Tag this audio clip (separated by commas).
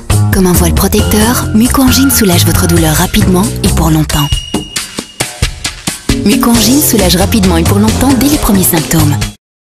Speech, Music